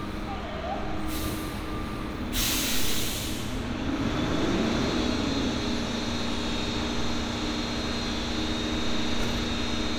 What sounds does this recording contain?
large-sounding engine